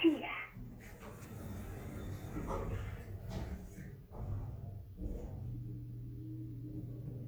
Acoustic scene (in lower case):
elevator